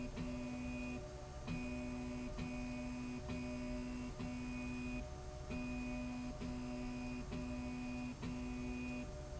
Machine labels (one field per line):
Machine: slide rail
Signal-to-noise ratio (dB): 6 dB